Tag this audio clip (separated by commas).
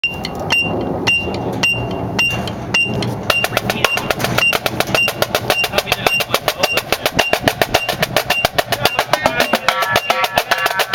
Percussion, Drum, Musical instrument, Speech, Music